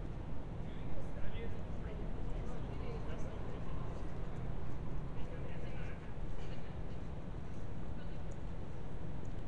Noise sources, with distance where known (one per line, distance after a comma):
person or small group talking, far